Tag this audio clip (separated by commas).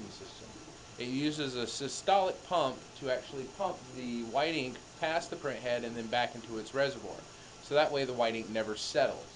Speech